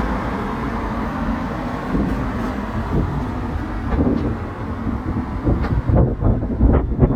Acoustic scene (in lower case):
street